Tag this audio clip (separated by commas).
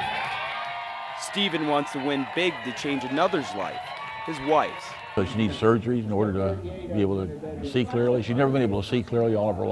Speech